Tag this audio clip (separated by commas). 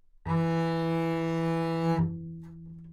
Music, Bowed string instrument, Musical instrument